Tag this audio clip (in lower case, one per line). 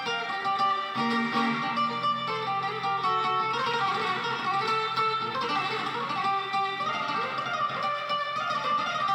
acoustic guitar
plucked string instrument
strum
music
guitar
musical instrument